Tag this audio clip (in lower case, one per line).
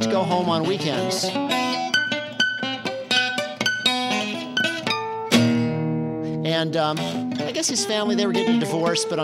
guitar
plucked string instrument
musical instrument
tapping (guitar technique)
music